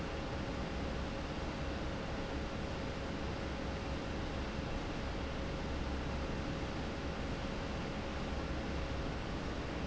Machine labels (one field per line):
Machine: fan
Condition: normal